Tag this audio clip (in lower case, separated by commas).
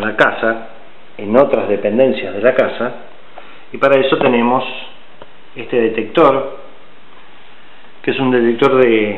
speech